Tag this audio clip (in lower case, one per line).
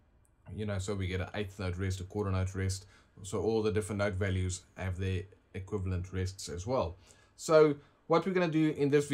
speech